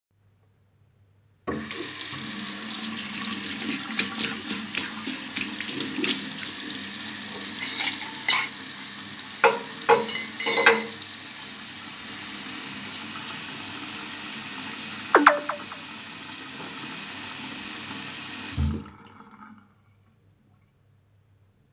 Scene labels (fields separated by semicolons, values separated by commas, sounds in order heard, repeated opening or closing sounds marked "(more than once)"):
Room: kitchen; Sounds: running water, cutlery and dishes, phone ringing